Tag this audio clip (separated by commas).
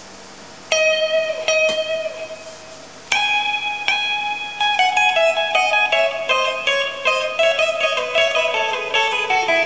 Music, Electric guitar, Guitar, Musical instrument